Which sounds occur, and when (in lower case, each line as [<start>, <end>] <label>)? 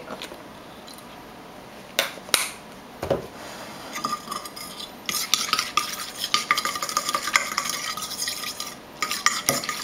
[0.00, 9.83] mechanisms
[0.02, 0.32] generic impact sounds
[0.82, 1.04] generic impact sounds
[1.97, 2.08] tick
[2.13, 2.31] generic impact sounds
[2.33, 2.47] tick
[2.66, 2.78] tick
[3.01, 3.21] generic impact sounds
[3.01, 3.28] tap
[3.31, 3.99] surface contact
[3.90, 4.87] silverware
[5.07, 8.73] stir
[5.07, 8.80] silverware
[9.00, 9.83] stir
[9.03, 9.83] silverware
[9.45, 9.64] surface contact